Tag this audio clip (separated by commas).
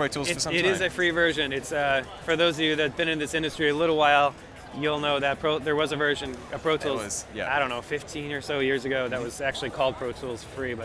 Speech